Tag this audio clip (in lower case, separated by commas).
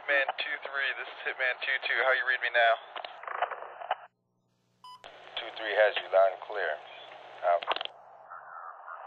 police radio chatter